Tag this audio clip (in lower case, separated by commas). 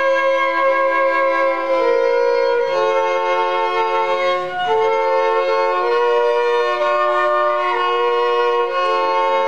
bowed string instrument, violin